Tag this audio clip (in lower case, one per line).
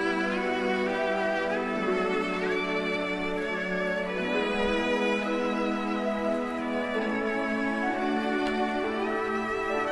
music